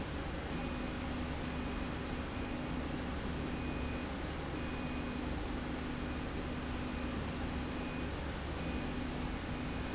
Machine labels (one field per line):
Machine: slide rail